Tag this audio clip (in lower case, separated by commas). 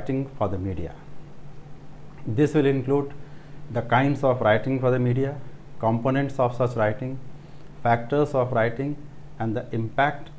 speech